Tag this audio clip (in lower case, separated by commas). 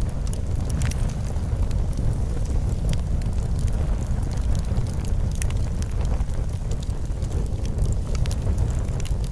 fire crackling